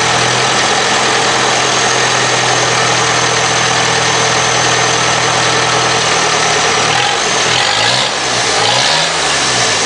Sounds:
vehicle, engine

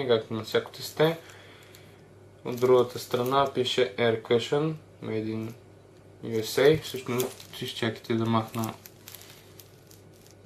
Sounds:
speech

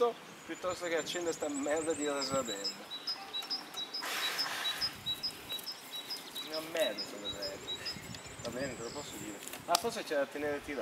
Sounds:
speech, environmental noise

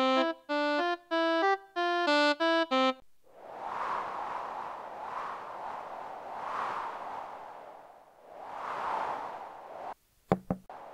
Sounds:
music

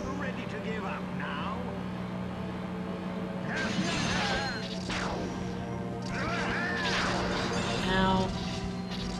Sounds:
speech

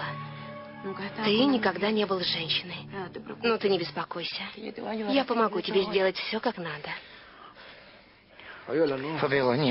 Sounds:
speech

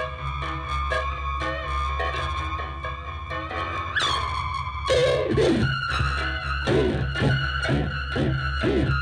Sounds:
pizzicato

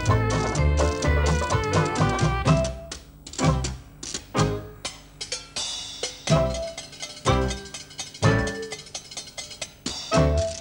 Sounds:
playing washboard

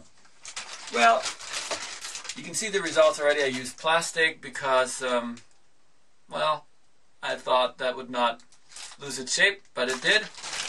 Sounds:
speech

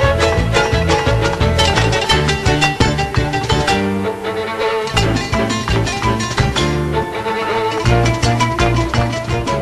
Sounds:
exciting music, classical music, music

